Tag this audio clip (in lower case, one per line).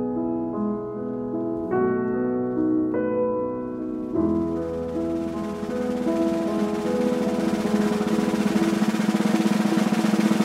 rimshot
snare drum
drum roll
percussion
drum